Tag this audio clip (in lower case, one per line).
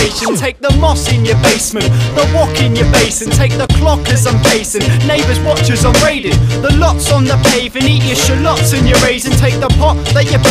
house music
music
rhythm and blues